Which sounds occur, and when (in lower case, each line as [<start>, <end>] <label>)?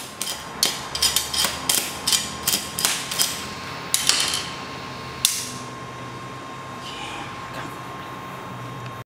[0.00, 9.04] mechanisms
[0.18, 0.45] generic impact sounds
[0.61, 0.82] generic impact sounds
[0.92, 1.25] generic impact sounds
[1.32, 1.48] generic impact sounds
[1.66, 1.79] generic impact sounds
[2.08, 2.22] generic impact sounds
[2.45, 2.62] generic impact sounds
[2.78, 2.97] generic impact sounds
[3.10, 3.31] generic impact sounds
[3.92, 4.43] generic impact sounds
[5.22, 5.58] generic impact sounds
[6.84, 7.31] scrape
[7.53, 7.66] generic impact sounds
[7.97, 8.04] generic impact sounds
[8.83, 8.90] tick